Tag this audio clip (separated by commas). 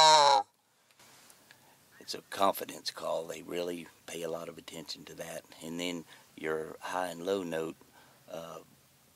Speech